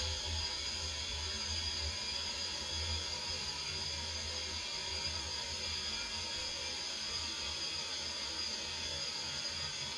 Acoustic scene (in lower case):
restroom